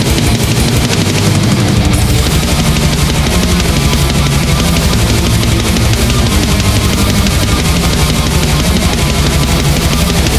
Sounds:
Dubstep, Music

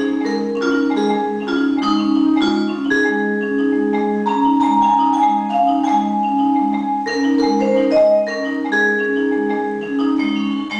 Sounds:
Music

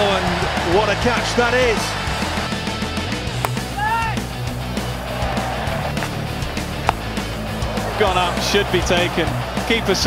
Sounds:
Music, Speech

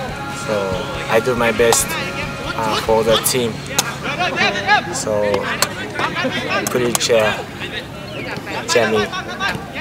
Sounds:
Speech, outside, urban or man-made, Music

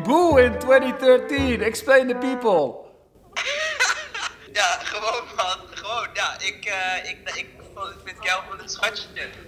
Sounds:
Conversation, Speech, Music

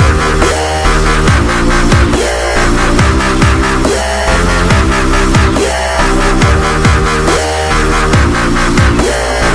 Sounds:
Electronic music, Music, Dubstep

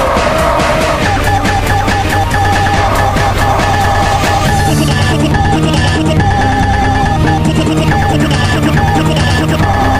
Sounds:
Music, Techno

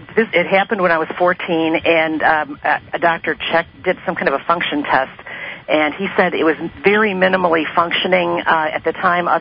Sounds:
Speech

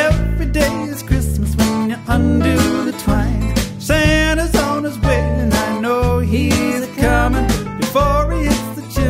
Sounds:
Reggae, Music

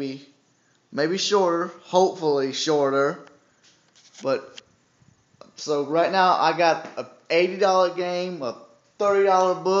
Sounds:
Speech, inside a small room

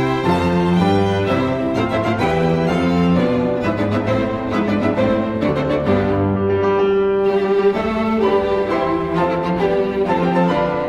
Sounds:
Musical instrument, Orchestra, Bowed string instrument, Piano, Music, Violin, Cello

